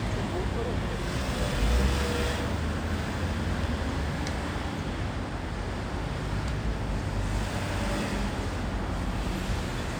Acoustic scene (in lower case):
street